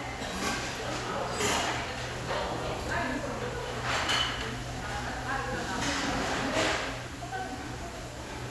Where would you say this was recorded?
in a restaurant